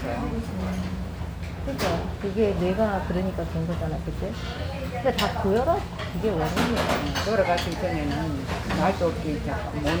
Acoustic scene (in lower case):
restaurant